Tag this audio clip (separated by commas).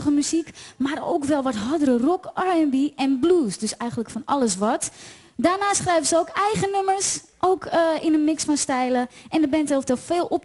Speech